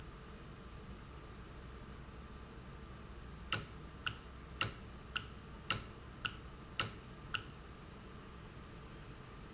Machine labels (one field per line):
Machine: valve